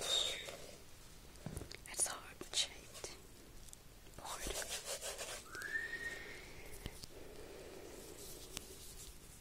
Rubbing and board and muffled talking in the background